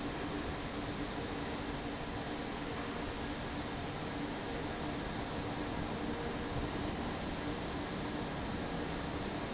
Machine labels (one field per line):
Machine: fan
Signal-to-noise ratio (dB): -6 dB